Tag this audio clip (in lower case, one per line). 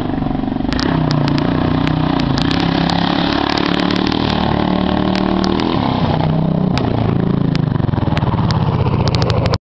vehicle